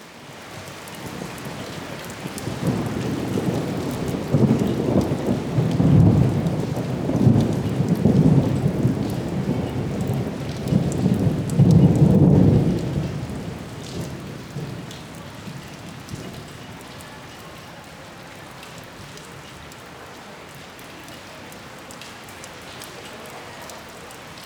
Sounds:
rain
water
thunderstorm
thunder

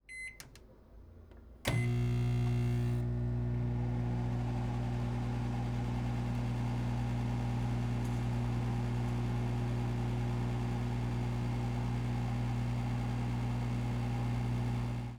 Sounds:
domestic sounds
microwave oven

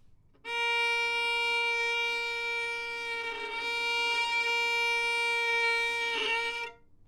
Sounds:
musical instrument
music
bowed string instrument

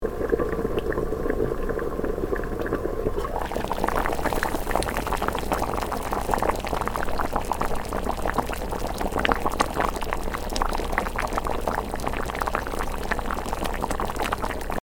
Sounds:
liquid
boiling

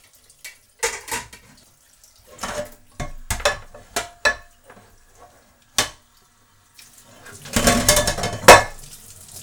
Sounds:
domestic sounds
sink (filling or washing)

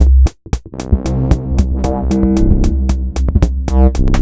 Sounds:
musical instrument
percussion
music
drum kit

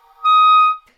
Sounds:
musical instrument
music
woodwind instrument

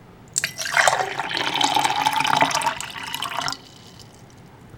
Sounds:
fill (with liquid)
liquid
pour
trickle

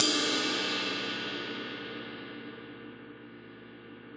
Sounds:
percussion
cymbal
music
crash cymbal
musical instrument

